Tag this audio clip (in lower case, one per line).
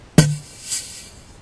fart